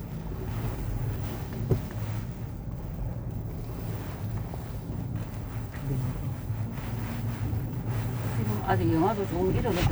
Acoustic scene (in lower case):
car